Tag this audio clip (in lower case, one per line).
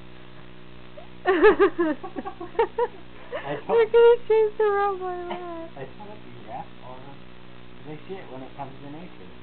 speech